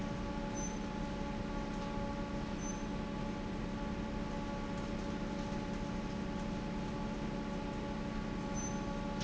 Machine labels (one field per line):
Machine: fan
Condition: normal